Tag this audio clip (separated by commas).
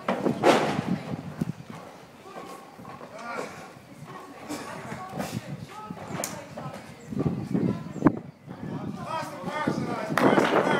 Speech